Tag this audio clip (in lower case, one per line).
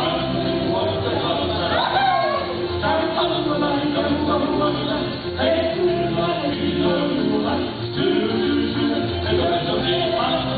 music